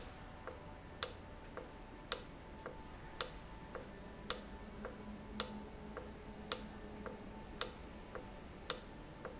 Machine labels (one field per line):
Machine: valve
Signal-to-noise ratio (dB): 6 dB